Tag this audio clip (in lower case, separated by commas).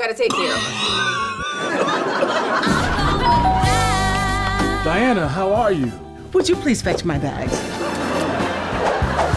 speech, music